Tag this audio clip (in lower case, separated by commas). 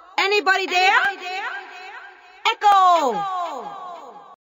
speech